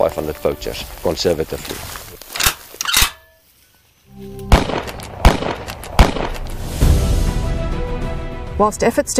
A man speaks followed by footsteps and gunshots